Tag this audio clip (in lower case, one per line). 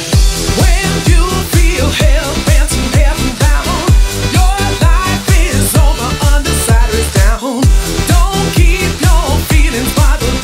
music